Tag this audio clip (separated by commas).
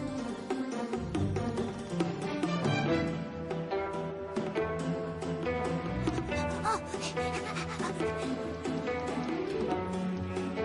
Music